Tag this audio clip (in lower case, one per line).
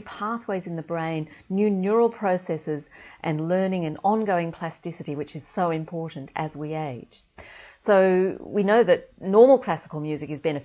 speech